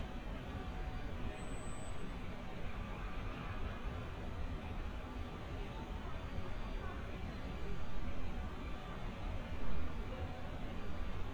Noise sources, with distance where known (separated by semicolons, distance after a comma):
reverse beeper, far